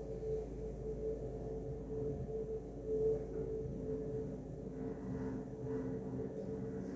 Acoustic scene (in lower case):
elevator